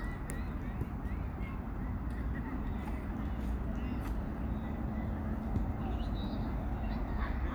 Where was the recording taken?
in a park